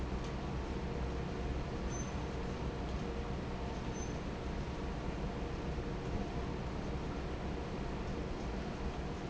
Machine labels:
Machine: fan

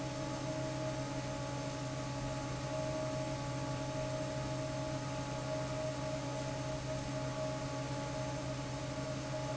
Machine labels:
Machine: fan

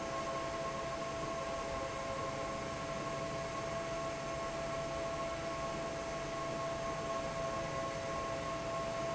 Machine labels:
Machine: fan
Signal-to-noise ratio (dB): -6 dB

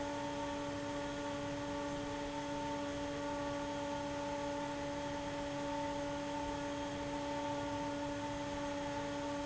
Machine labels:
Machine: fan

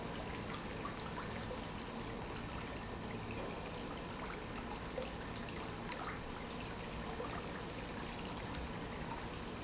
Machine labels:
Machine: pump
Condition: normal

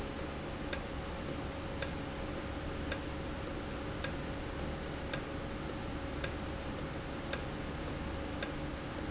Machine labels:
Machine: valve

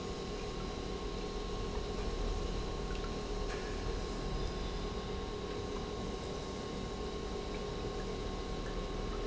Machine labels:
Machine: pump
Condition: normal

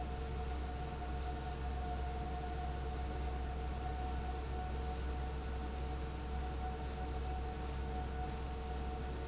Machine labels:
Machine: fan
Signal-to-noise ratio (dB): 0 dB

